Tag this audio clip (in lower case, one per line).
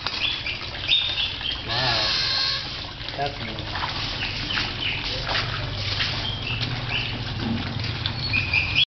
speech
animal
inside a large room or hall